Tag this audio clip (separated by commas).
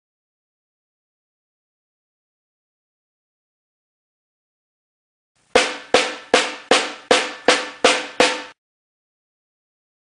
playing snare drum